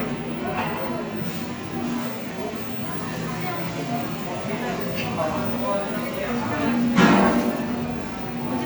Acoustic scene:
cafe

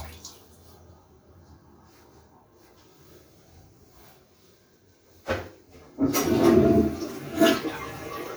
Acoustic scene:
restroom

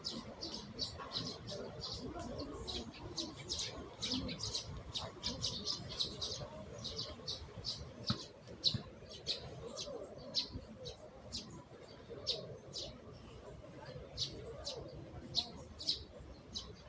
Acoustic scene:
park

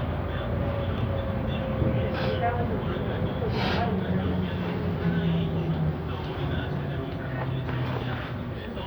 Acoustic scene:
bus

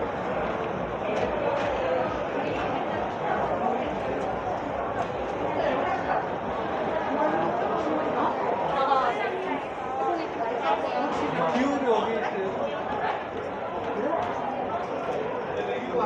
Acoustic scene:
crowded indoor space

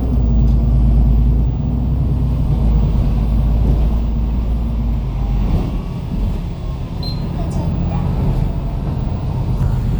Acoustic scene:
bus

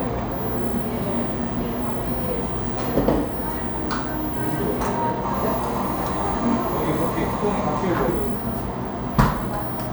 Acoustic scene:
cafe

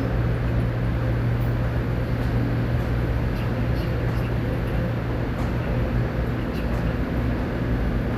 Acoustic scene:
subway station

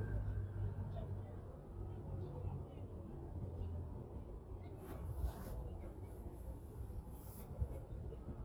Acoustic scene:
residential area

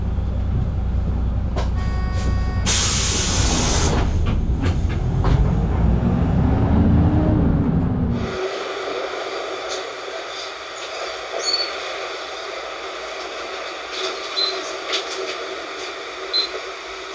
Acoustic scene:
bus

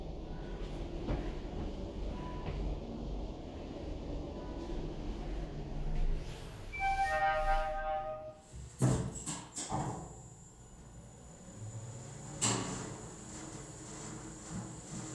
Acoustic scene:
elevator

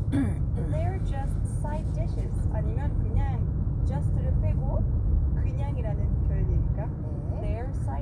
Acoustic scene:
car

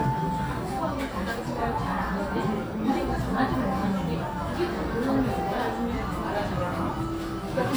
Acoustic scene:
cafe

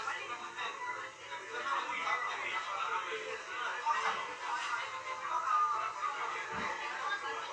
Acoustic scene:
restaurant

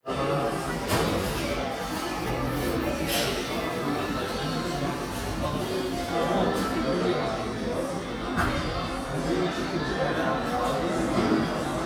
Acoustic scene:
cafe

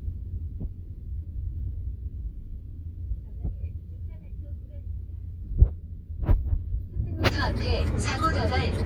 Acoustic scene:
car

